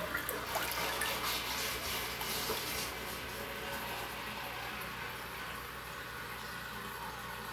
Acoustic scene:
restroom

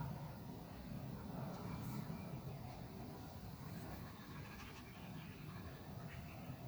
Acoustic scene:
park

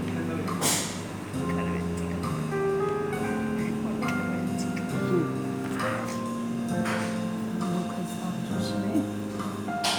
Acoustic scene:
cafe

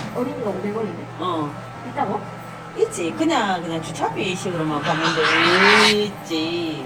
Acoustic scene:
cafe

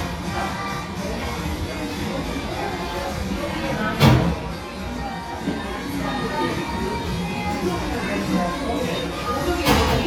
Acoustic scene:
cafe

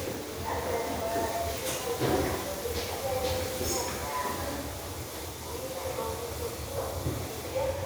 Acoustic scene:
restroom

